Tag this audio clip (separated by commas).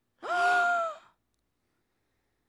Breathing, Gasp, Respiratory sounds